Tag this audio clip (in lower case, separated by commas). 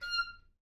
musical instrument, music, wind instrument